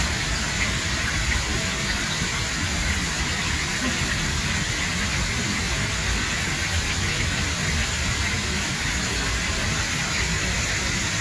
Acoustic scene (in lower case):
park